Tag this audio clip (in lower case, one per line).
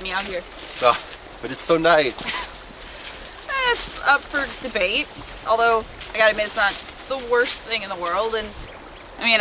speech